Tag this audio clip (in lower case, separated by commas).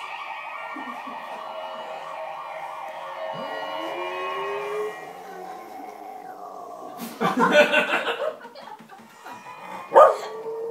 dog howling